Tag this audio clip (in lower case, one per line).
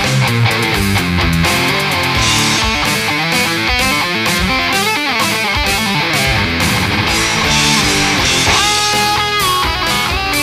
musical instrument
music
plucked string instrument
strum
guitar